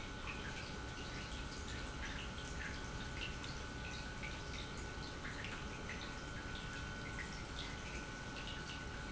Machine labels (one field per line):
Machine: pump